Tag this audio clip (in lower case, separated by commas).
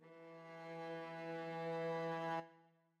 bowed string instrument, musical instrument, music